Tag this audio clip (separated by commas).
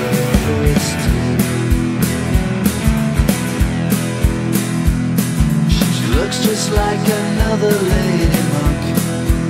Music